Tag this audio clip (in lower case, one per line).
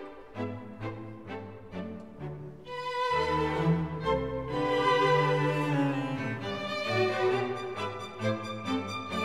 middle eastern music
music